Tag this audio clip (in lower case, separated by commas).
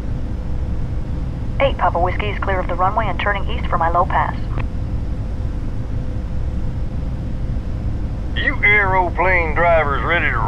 speech